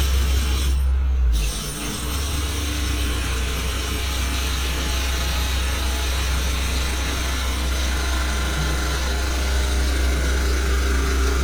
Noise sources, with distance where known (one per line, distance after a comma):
jackhammer, near